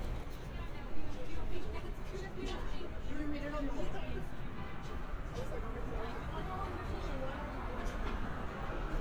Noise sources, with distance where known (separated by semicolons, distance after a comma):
person or small group talking, near